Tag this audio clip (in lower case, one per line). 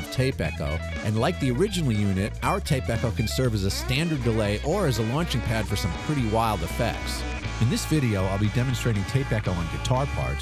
music
speech
echo